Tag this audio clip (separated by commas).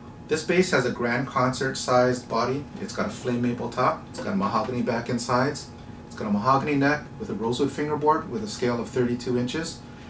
Speech